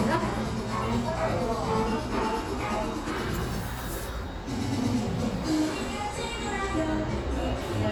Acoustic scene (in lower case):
cafe